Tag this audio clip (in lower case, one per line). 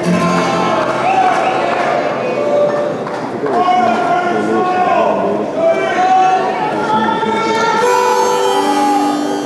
music
speech